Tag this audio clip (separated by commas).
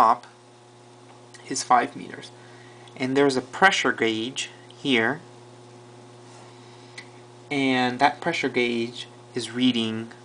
Speech